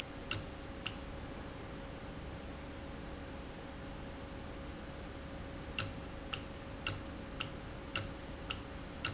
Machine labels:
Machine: valve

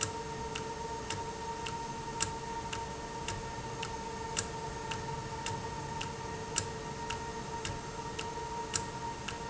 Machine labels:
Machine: valve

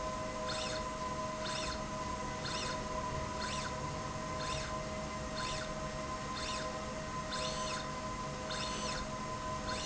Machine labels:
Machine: slide rail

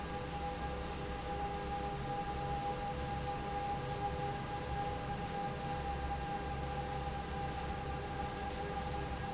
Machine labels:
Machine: fan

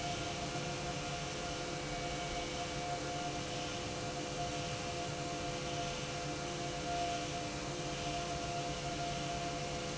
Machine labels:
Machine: pump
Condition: normal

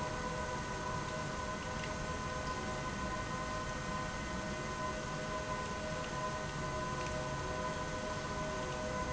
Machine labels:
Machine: pump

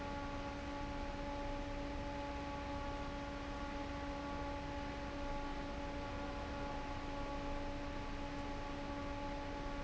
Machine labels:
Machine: fan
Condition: normal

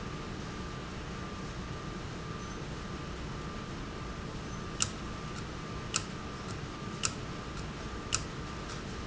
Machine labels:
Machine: valve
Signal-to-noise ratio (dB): -6 dB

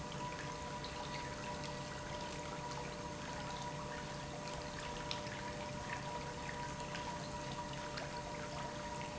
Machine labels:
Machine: pump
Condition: normal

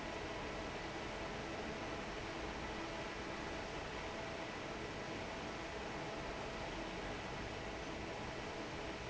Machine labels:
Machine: fan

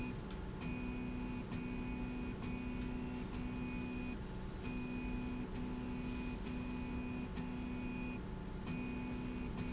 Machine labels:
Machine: slide rail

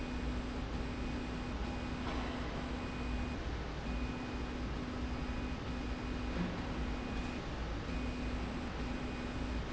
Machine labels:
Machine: slide rail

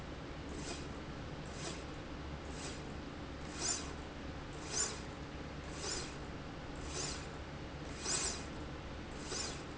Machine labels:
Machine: slide rail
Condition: normal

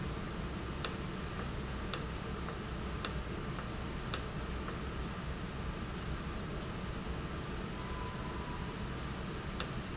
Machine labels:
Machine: valve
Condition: normal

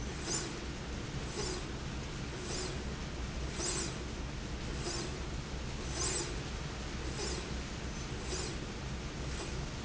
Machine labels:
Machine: slide rail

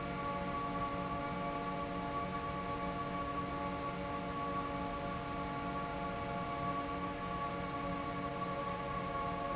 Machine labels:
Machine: fan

